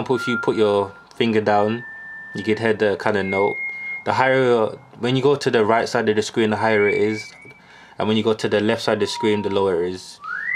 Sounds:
inside a small room, speech

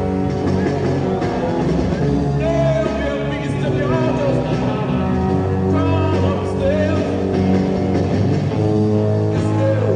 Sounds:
music

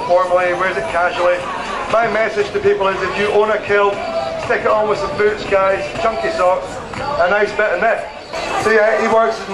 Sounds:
speech, music

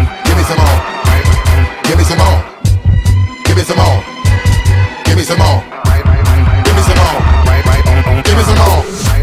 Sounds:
electronic music, dubstep, music

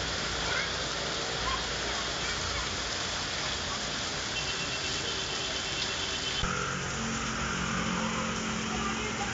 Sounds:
rain on surface, speech

